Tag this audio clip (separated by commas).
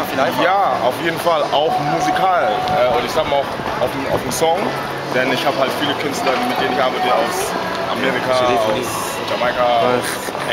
Music, Speech